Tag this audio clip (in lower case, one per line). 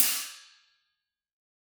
music
cymbal
hi-hat
percussion
musical instrument